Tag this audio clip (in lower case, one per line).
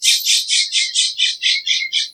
bird
bird vocalization
animal
wild animals